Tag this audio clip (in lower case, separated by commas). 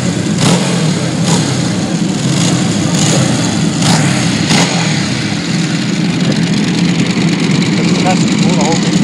motorcycle, outside, urban or man-made, vehicle, speech